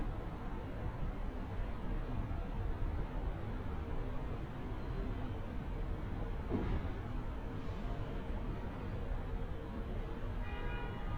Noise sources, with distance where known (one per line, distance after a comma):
car horn, far